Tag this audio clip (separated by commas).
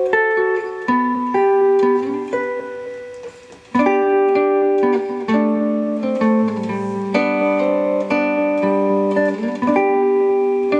Guitar, Plucked string instrument, Musical instrument, Music